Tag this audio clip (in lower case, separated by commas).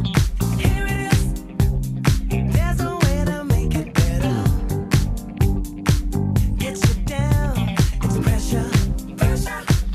music